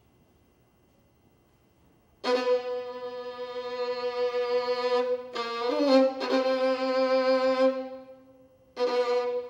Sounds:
musical instrument
violin
pizzicato
music

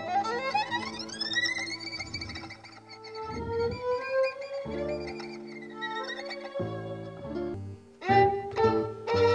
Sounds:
violin
musical instrument
music

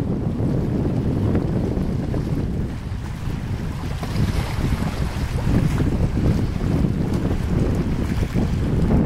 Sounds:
vehicle
boat

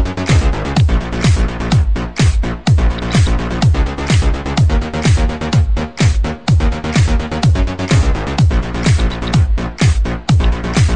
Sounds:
techno
dubstep

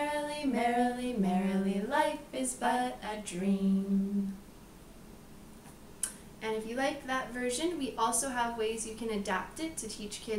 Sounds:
speech

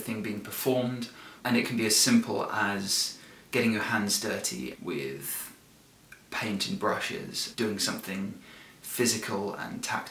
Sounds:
speech

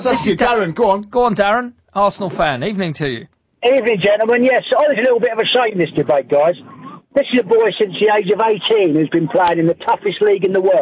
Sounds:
speech

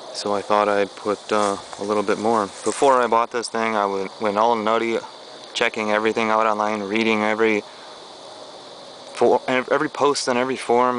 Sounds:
speech

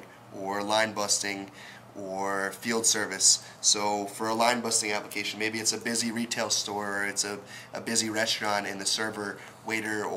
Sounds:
speech

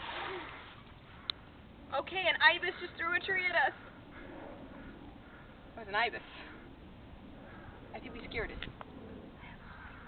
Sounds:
speech

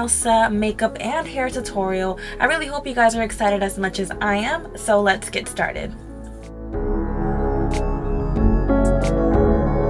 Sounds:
ambient music

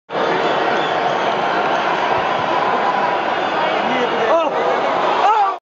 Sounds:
speech

